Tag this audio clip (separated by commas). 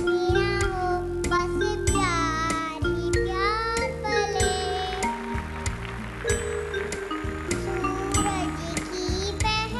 Music, Child singing